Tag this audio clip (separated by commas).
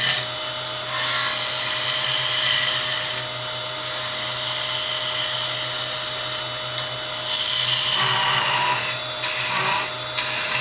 Tools